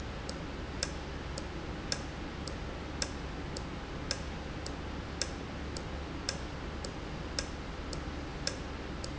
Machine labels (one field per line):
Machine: valve